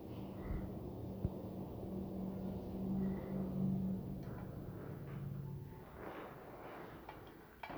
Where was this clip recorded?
in an elevator